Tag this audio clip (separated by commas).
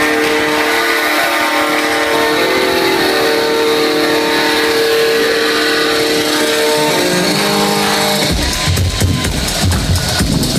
Jazz, Music, Disco